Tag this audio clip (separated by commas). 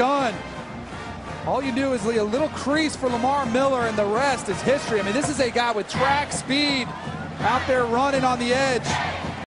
Speech